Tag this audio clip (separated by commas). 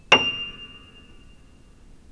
Keyboard (musical), Musical instrument, Music, Piano